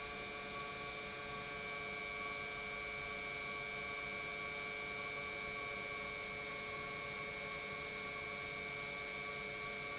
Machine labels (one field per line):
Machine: pump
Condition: normal